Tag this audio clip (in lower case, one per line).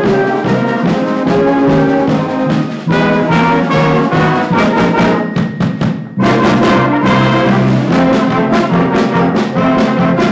drum
percussion
rimshot